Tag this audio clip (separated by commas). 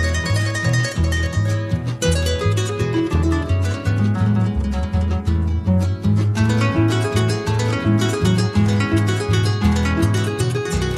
Musical instrument, Music